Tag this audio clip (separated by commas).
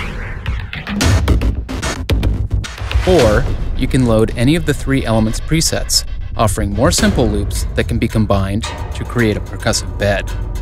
Music, Speech